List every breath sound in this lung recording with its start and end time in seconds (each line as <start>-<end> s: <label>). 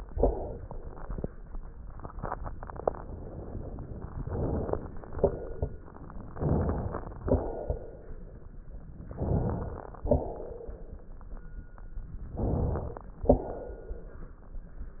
0.06-1.17 s: exhalation
4.16-4.77 s: inhalation
4.77-5.80 s: exhalation
6.29-7.21 s: inhalation
7.21-8.65 s: exhalation
9.07-10.05 s: inhalation
10.05-11.49 s: exhalation
12.30-13.13 s: inhalation
13.13-14.48 s: exhalation